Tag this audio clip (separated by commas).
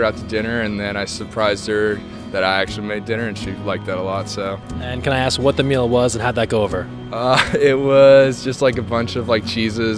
Music, Speech